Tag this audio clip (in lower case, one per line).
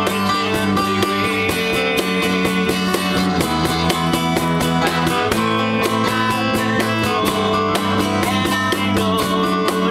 strum
guitar
plucked string instrument
music
musical instrument